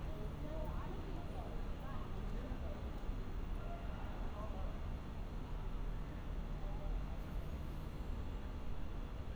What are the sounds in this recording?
medium-sounding engine, person or small group talking